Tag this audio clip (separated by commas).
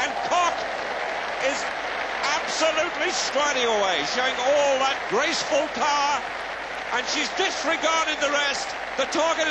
Speech, inside a public space